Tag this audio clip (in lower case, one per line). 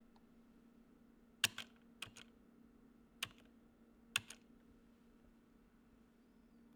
domestic sounds
typing
computer keyboard